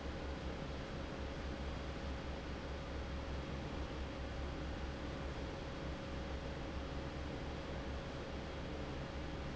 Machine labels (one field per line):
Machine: fan